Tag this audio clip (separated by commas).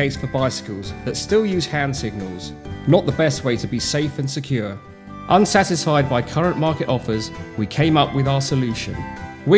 Music, Speech